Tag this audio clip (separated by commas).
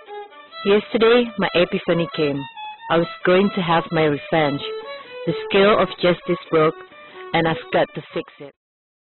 Speech, Musical instrument, Violin, Music